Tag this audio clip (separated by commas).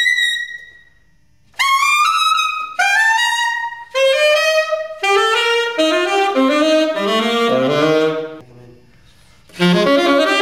Music, Wind instrument, Saxophone, inside a large room or hall, Musical instrument